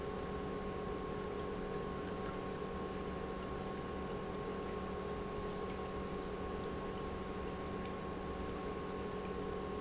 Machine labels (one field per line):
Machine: pump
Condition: normal